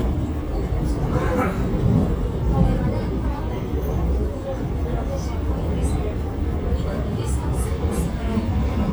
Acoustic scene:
subway train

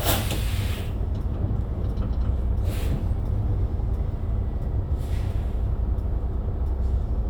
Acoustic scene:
bus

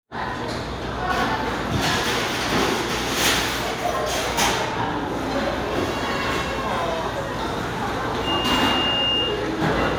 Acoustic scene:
restaurant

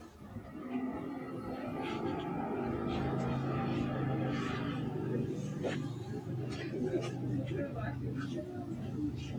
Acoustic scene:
residential area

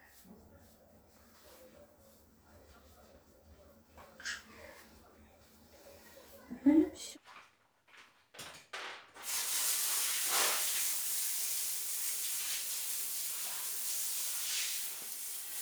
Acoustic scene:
restroom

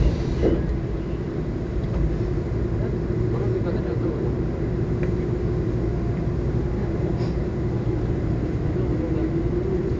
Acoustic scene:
subway train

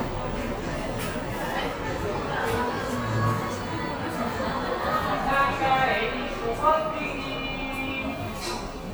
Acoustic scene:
cafe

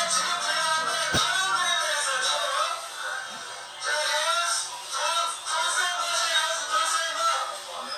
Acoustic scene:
crowded indoor space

